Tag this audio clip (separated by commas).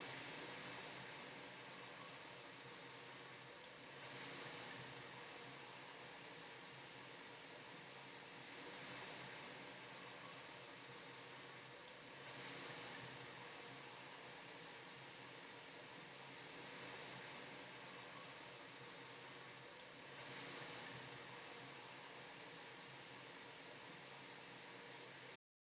Water